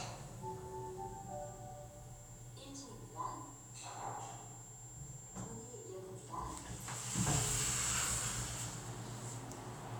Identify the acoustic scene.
elevator